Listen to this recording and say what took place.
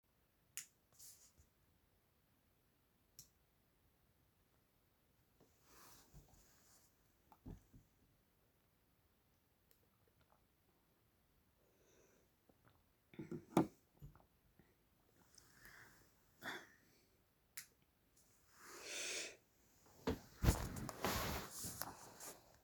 I turned on the light at night to drink some water from the glass of water near me. Then slept further.